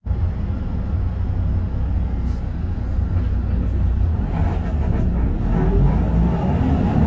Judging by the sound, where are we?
on a bus